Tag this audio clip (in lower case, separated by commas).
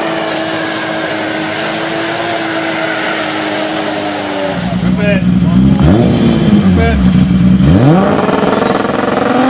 speech